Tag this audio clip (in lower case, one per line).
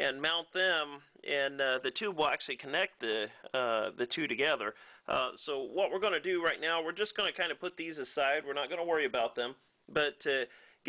speech